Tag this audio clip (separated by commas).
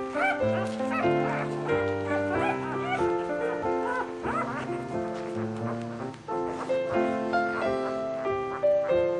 Animal, Music